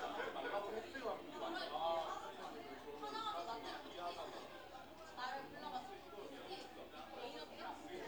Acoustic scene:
crowded indoor space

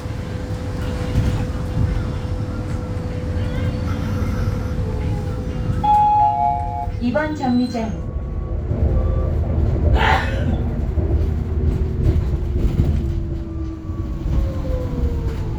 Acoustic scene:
bus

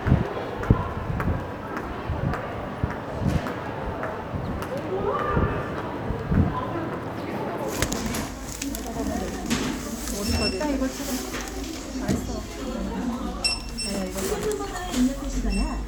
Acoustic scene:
crowded indoor space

